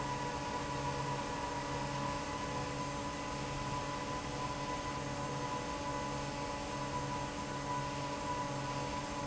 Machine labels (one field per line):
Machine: fan